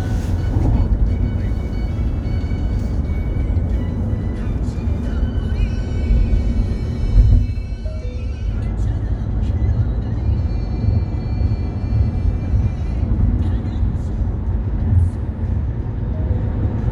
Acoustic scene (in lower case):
car